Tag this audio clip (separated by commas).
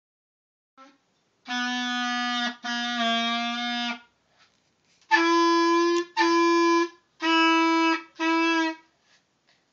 Clarinet